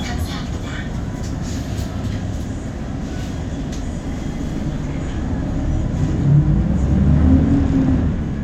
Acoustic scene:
bus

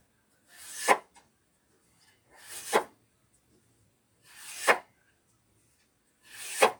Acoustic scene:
kitchen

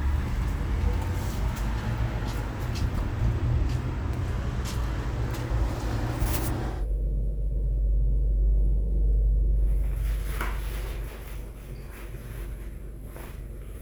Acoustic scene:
elevator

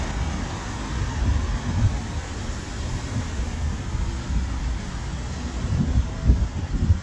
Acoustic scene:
street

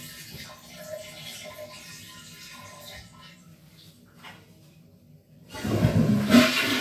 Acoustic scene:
restroom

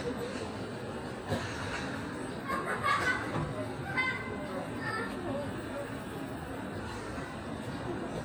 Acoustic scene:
park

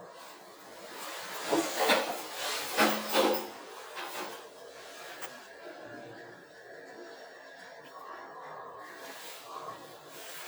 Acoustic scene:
elevator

